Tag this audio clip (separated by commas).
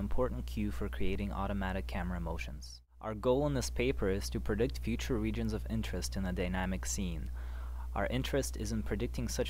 Speech